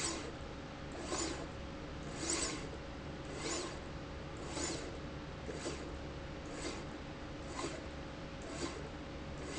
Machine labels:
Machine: slide rail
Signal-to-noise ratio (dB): 0 dB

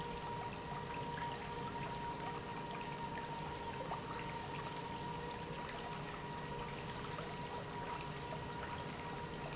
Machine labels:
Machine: pump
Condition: normal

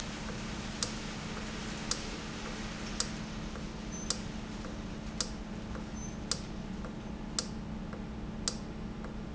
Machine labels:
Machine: valve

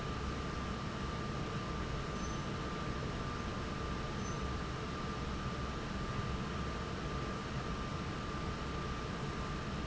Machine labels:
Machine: fan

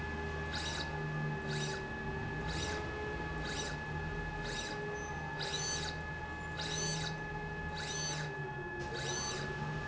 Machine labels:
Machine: slide rail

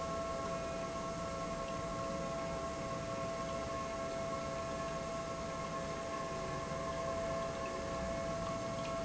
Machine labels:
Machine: pump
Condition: normal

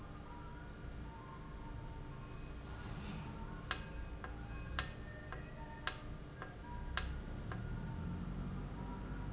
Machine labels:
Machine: valve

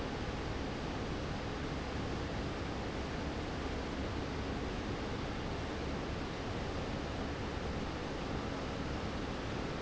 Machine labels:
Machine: fan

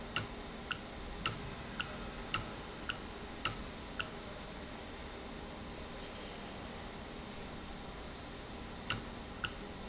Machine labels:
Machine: valve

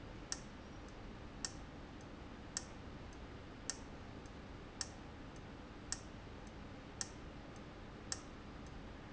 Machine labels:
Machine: valve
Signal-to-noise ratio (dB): 6 dB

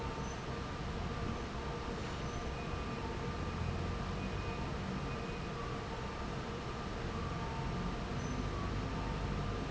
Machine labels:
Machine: fan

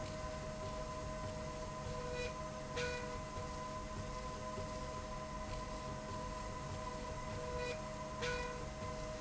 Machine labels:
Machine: slide rail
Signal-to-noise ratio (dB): 0 dB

